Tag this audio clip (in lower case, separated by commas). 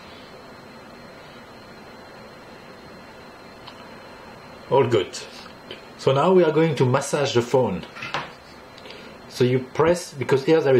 speech